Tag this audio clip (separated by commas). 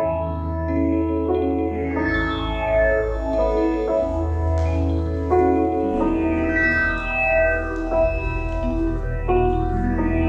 Chime, Keyboard (musical)